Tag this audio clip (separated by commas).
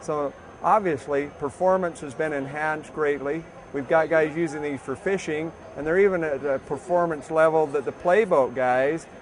Speech